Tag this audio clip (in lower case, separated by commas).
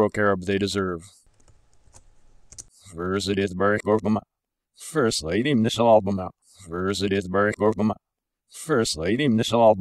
narration, male speech, speech